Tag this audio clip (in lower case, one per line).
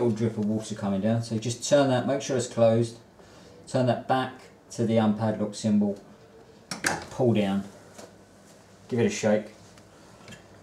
speech